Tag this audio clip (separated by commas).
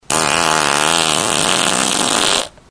Fart